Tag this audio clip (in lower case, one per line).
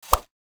swish